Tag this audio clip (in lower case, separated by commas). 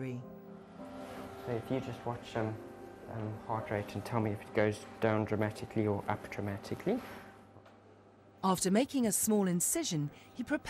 music, speech